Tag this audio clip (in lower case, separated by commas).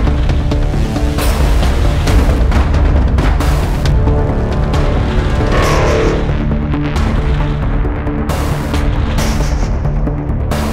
theme music, soundtrack music, music